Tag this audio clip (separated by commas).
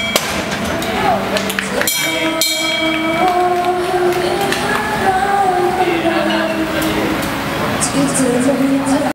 Speech